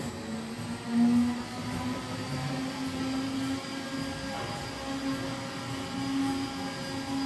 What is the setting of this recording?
cafe